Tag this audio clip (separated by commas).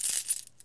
home sounds, Coin (dropping)